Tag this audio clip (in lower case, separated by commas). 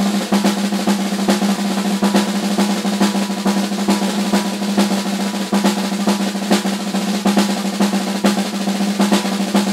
music, drum roll